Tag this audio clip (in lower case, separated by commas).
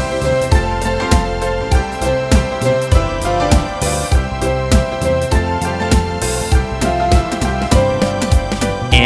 music for children, music